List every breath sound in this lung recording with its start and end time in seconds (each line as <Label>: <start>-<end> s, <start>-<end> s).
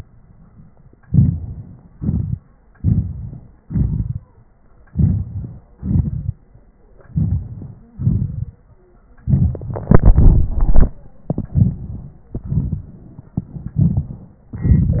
Inhalation: 1.02-1.97 s, 2.79-3.65 s, 4.90-5.77 s, 7.11-7.97 s, 11.28-12.33 s, 13.76-14.51 s
Exhalation: 1.94-2.79 s, 3.64-4.88 s, 5.77-7.10 s, 7.99-9.26 s, 12.36-13.75 s, 14.50-15.00 s
Wheeze: 7.72-8.07 s